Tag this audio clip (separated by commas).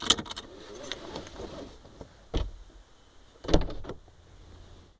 Car, Vehicle, Motor vehicle (road)